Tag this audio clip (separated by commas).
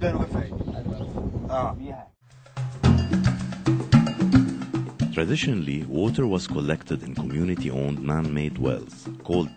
Speech, Music